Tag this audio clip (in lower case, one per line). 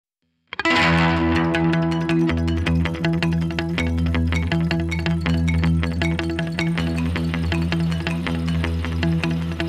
electric guitar